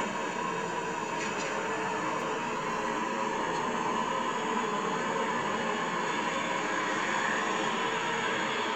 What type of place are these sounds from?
car